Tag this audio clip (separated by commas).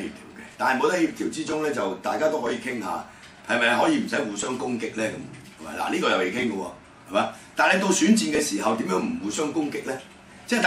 Speech